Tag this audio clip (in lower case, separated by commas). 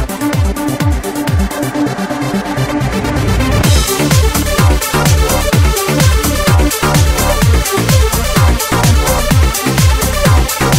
music